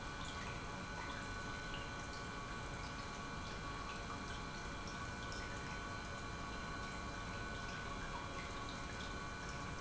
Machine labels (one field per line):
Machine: pump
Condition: normal